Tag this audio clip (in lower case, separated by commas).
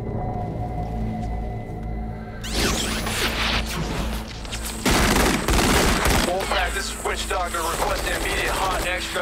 speech, fusillade